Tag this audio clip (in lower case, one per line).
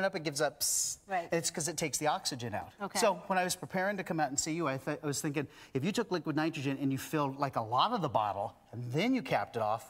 speech